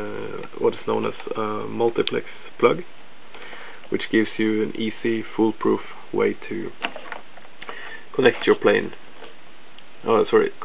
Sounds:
Speech

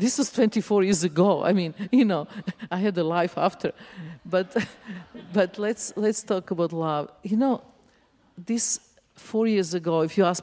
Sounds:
Speech

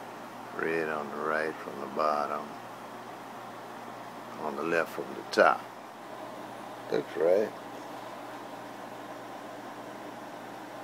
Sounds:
Speech

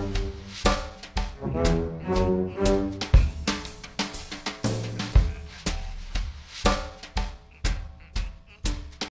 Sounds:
Music

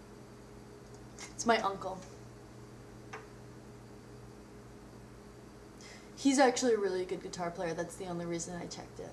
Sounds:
Speech

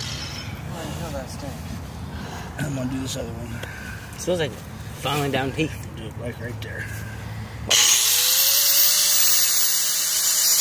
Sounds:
Speech

